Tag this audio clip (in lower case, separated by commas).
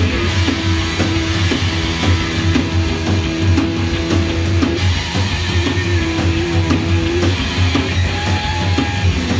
music